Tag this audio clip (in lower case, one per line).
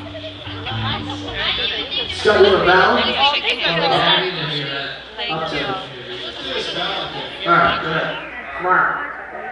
music
speech
hubbub